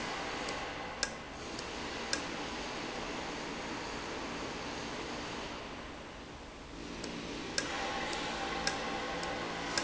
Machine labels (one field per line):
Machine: valve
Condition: normal